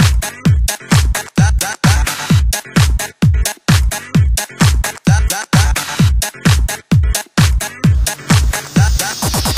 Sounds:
Electronica, Techno, Music, Electronic music, Disco

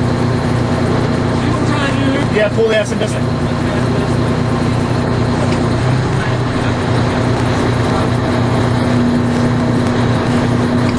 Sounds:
Vehicle, Idling, Speech, Engine

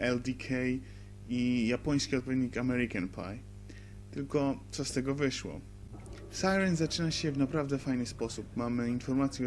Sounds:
Speech

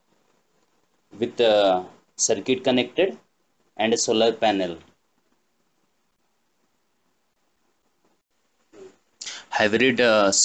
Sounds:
Speech

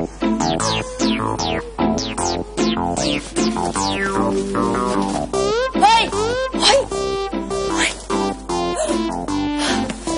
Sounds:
Music, Speech

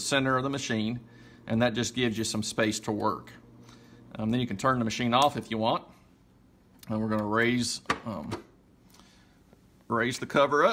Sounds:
Speech

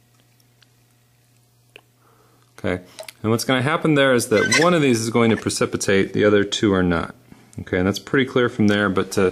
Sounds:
mastication, Speech

